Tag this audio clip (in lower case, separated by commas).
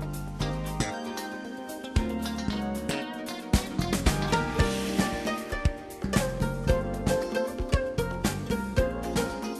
music